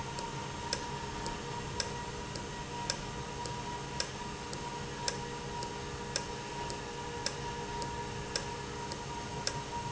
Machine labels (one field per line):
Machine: valve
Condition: normal